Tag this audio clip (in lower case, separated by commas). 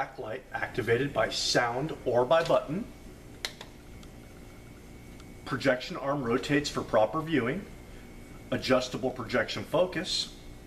speech